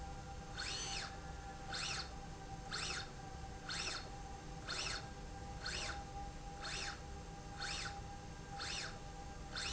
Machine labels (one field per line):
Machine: slide rail